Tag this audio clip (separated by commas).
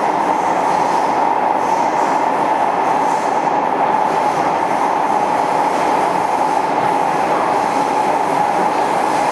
Train, Vehicle